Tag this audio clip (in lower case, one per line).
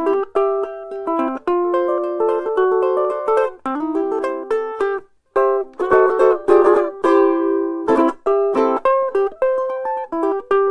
music